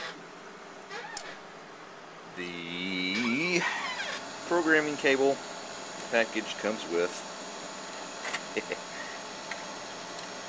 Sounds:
speech

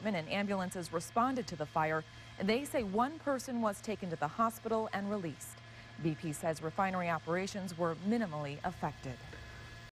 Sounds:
speech

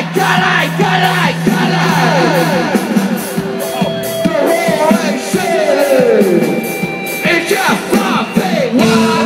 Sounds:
music
independent music
speech

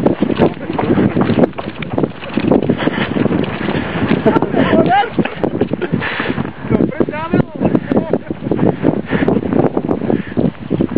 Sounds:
speech
wind noise (microphone)

